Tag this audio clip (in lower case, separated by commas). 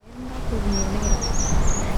bird, animal, wild animals